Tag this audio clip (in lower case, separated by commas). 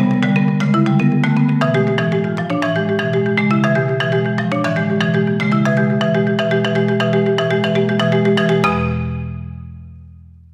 glockenspiel, playing marimba, mallet percussion, marimba